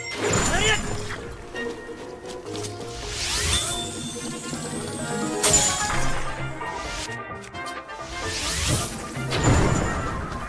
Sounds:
swish

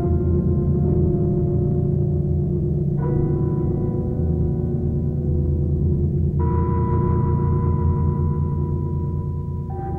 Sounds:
gong

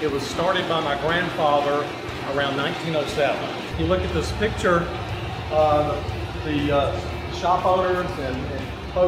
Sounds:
bowling impact

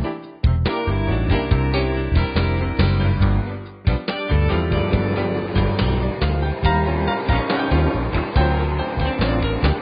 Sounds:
music
gurgling

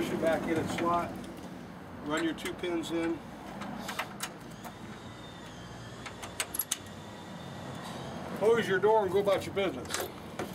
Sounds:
speech
outside, urban or man-made
vehicle

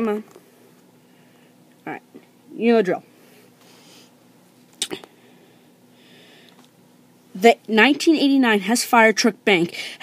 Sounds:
speech

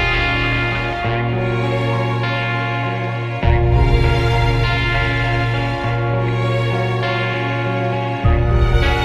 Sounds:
ambient music

